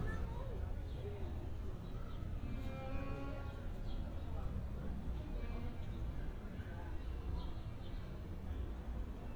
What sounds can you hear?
music from an unclear source